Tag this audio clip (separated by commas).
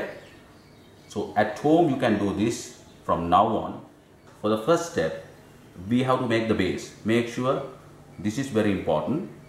Speech